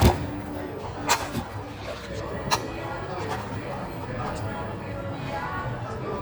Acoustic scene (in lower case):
cafe